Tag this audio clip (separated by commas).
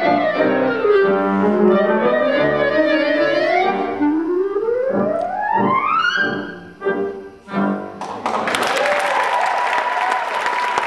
playing clarinet